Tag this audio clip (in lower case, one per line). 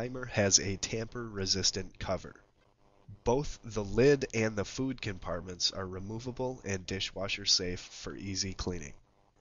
speech